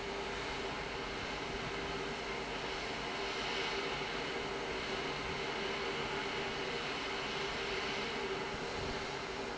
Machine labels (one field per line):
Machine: fan